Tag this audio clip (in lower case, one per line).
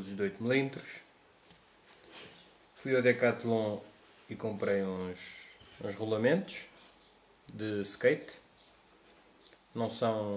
speech